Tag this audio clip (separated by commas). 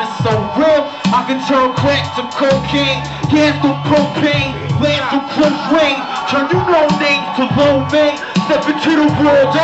Music